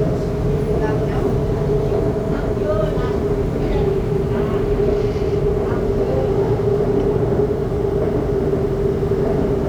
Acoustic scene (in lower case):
subway train